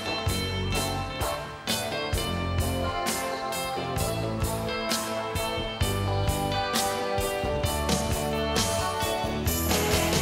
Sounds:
music, guitar, musical instrument

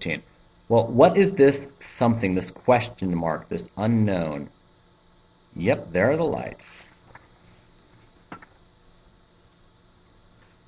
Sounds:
speech

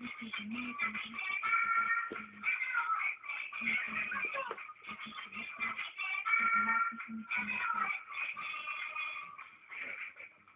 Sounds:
music, speech

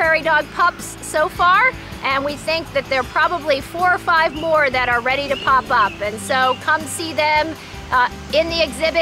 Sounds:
music, speech

